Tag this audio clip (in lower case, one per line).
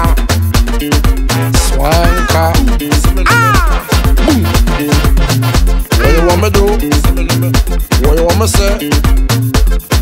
afrobeat
music